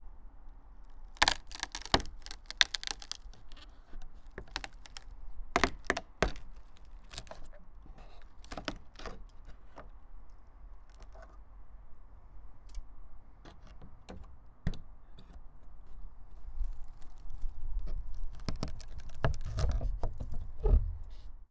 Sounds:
Wood

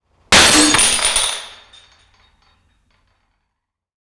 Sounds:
Shatter, Glass

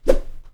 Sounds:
Whoosh

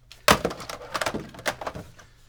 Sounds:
Alarm, Telephone

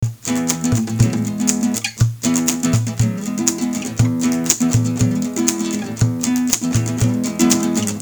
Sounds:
Musical instrument, Music, Guitar, Acoustic guitar, Plucked string instrument

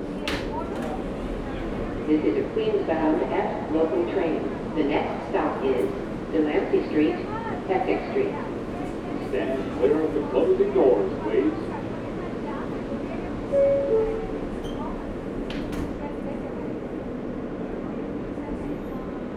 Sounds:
Vehicle, Rail transport, underground

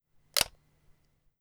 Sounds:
Camera, Mechanisms

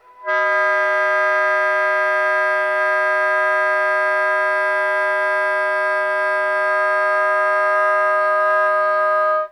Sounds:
Music, woodwind instrument, Musical instrument

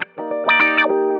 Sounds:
Music, Musical instrument, Plucked string instrument, Guitar

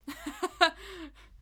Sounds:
Human voice, Laughter

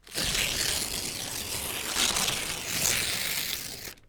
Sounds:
Tearing

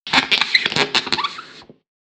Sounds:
Squeak

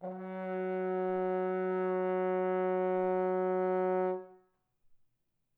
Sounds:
Music, Musical instrument, Brass instrument

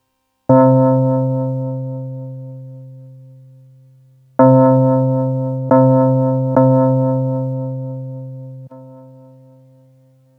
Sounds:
Music, Keyboard (musical), Musical instrument

